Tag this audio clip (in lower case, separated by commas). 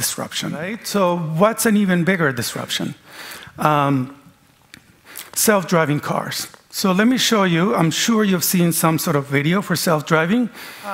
speech